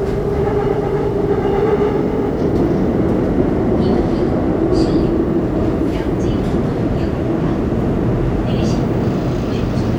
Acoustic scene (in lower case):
subway train